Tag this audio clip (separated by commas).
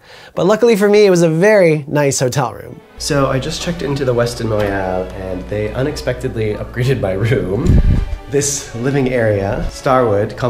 Speech, Music